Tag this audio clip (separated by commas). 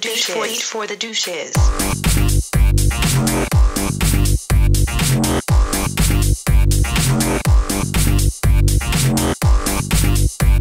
Pop music, Music, Speech